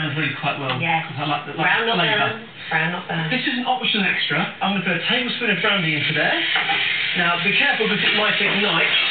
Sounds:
speech

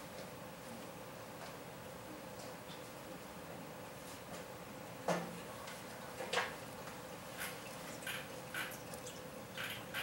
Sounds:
chipmunk chirping

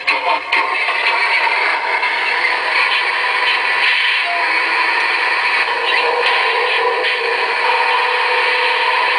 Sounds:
vehicle

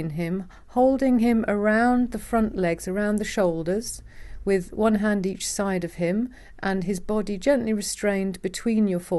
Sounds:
speech

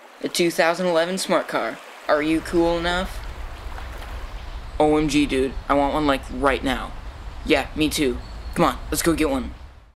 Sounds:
speech

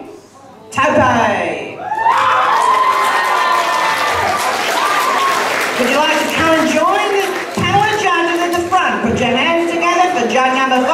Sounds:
speech

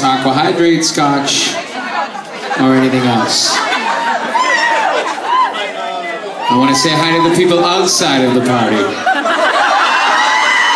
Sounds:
narration, speech, man speaking

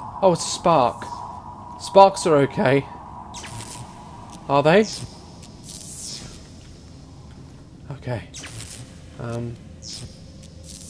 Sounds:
speech

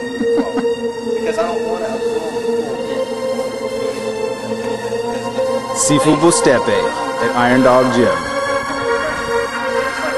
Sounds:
speech, music

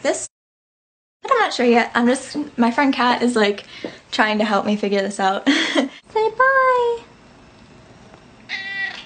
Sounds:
speech, inside a large room or hall, animal

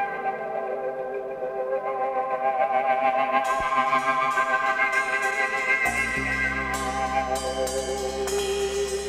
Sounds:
didgeridoo

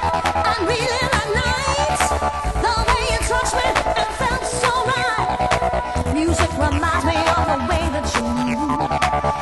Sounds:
techno, music

